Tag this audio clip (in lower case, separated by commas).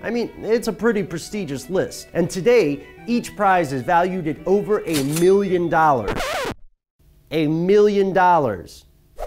speech